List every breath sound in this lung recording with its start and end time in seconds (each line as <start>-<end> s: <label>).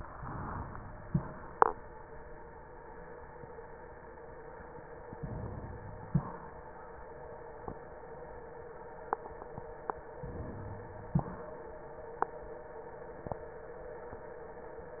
0.14-0.78 s: inhalation
1.07-1.52 s: exhalation
5.15-5.93 s: inhalation
6.09-6.59 s: exhalation
10.21-10.90 s: inhalation
11.20-11.71 s: exhalation